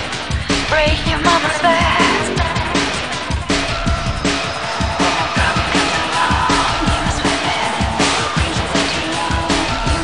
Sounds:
music

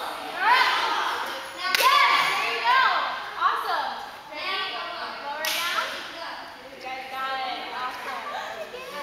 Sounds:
speech

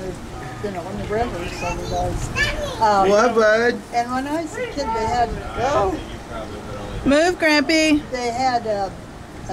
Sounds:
child speech
speech
outside, urban or man-made
speech babble

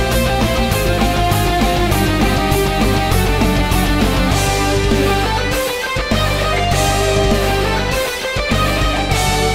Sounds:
music

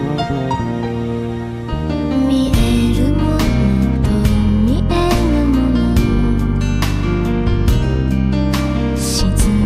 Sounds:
music

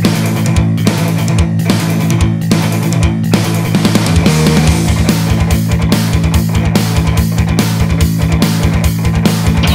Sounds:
video game music
music

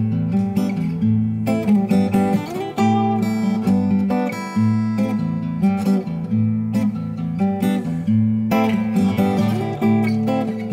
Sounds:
music
acoustic guitar
musical instrument
guitar
strum
plucked string instrument

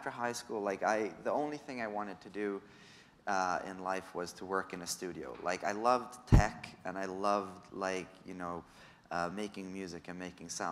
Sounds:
speech

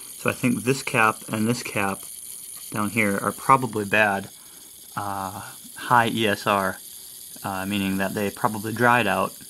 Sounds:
speech
white noise

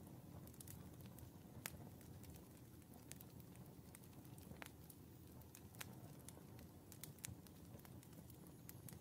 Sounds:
fire crackling

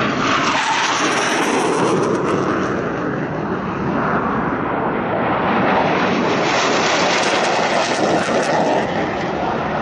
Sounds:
airplane flyby

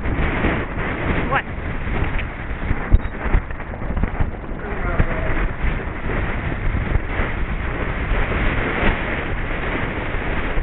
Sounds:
clip-clop
speech

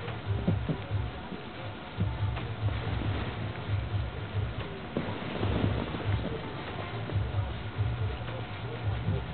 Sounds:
music

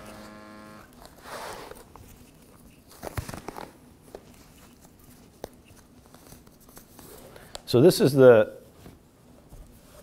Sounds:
inside a small room
speech

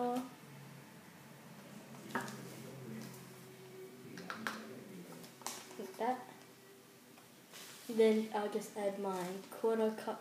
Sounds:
speech

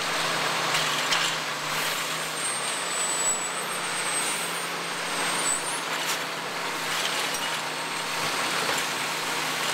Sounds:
vehicle

